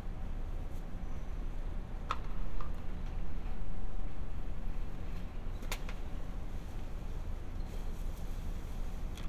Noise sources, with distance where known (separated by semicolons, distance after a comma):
background noise